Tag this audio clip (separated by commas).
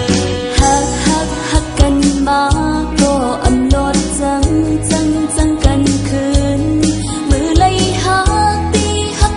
Music